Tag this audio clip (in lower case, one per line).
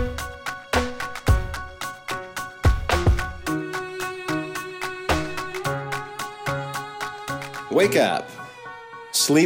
music
speech